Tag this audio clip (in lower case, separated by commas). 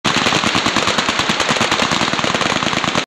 artillery fire